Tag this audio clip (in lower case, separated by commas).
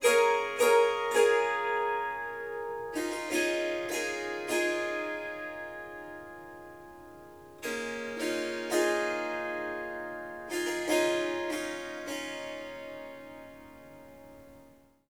musical instrument, harp, music